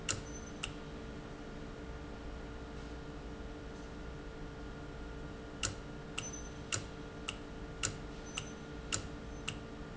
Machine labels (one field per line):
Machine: valve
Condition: normal